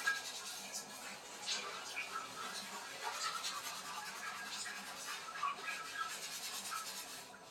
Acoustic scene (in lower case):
restroom